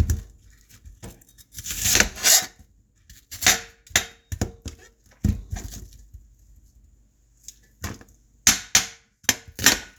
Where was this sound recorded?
in a kitchen